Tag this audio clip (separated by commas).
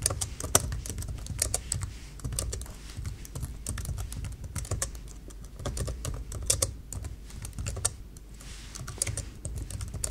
typing on computer keyboard